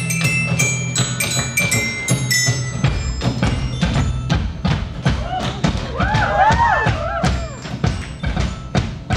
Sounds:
xylophone, mallet percussion, glockenspiel

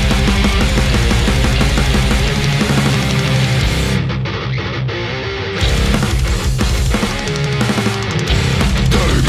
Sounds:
music

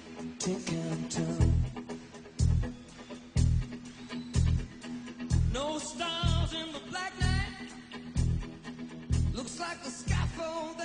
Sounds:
music

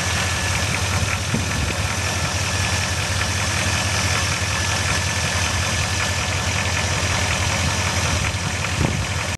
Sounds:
engine, medium engine (mid frequency), vehicle, idling

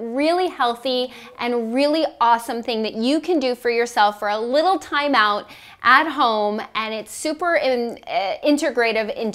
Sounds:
speech

